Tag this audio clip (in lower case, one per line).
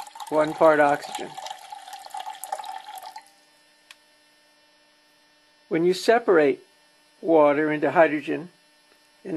speech